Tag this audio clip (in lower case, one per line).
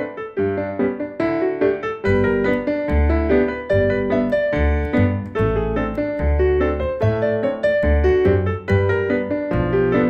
music